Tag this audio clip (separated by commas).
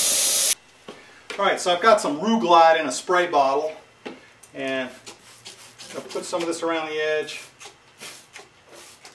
Speech